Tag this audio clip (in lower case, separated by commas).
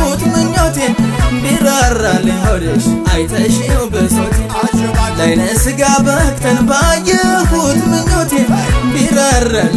music, soundtrack music